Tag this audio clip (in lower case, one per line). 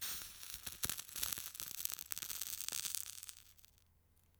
crackle
fire